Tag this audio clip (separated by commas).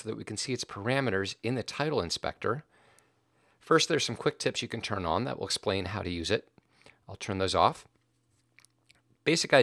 Speech